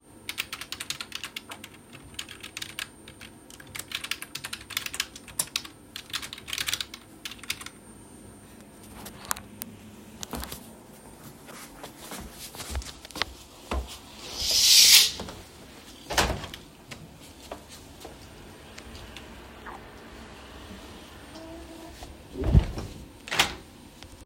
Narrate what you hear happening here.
I typed on the keyboard. Then I left my seat, drew the curtain, opened the window. While the window stayed open, there was some traffic noise from outside. Finally I closed the window.